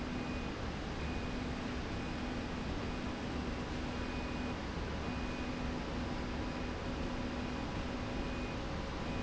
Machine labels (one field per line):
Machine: slide rail